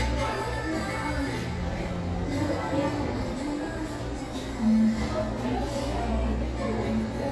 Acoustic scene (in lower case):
cafe